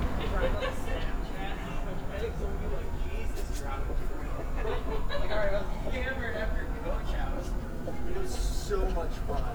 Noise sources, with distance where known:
person or small group talking, near

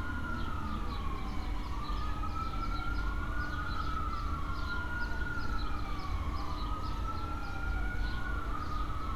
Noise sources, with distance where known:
siren, near

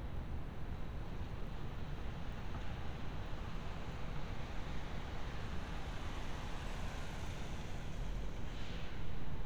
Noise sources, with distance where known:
background noise

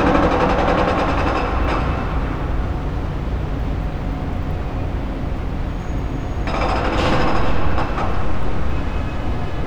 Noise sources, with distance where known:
hoe ram
car horn, far

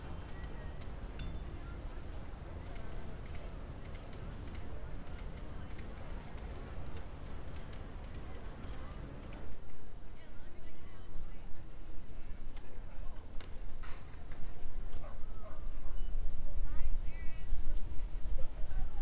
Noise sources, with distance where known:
person or small group talking, far

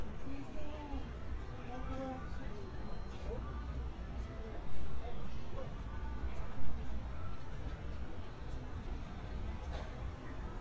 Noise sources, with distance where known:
music from an unclear source, far
person or small group talking

